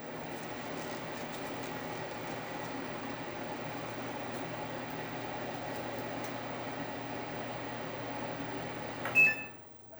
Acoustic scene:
kitchen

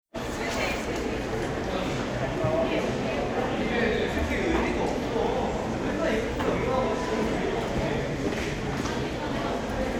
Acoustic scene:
crowded indoor space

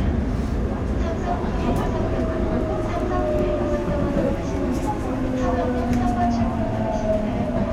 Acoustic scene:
subway train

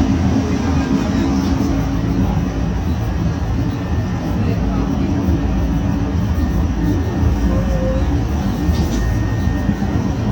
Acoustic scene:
bus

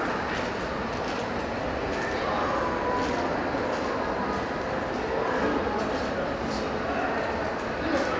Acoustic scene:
crowded indoor space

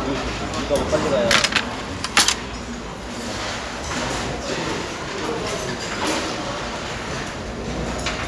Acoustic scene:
restaurant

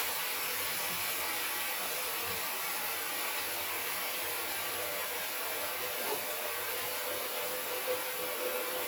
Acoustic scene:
restroom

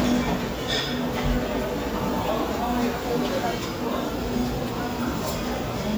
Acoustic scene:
crowded indoor space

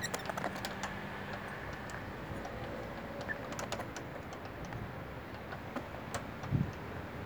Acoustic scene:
residential area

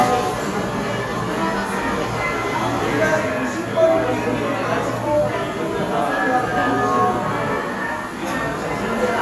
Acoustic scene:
cafe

